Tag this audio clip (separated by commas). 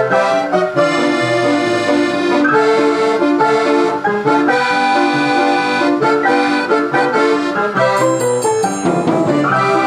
Music, Accordion, Musical instrument